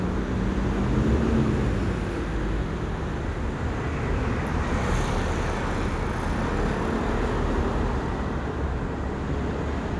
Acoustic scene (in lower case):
street